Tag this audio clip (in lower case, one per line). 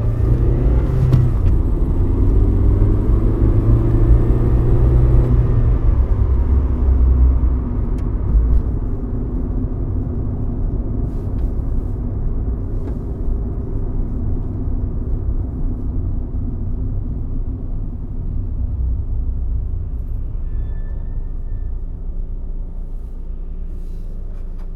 vehicle
motor vehicle (road)